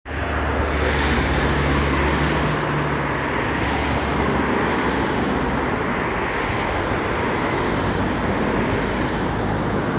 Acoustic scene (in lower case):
street